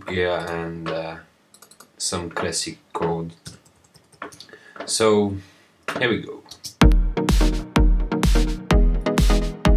Typing on a computer keyboard and clicking on a computer mouse as a man is talking followed by music playing